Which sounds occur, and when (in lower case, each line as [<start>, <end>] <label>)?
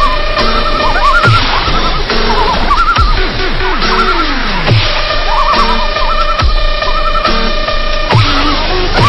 [0.00, 3.29] bird call
[0.00, 9.05] music
[3.55, 4.75] bird call
[5.03, 7.58] bird call
[8.06, 9.05] bird call